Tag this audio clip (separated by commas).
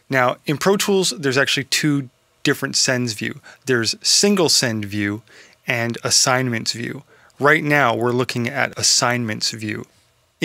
Speech